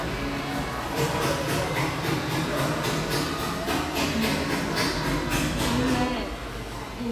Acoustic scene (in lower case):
cafe